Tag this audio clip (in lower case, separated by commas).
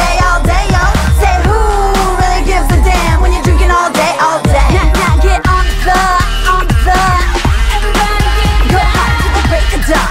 music, exciting music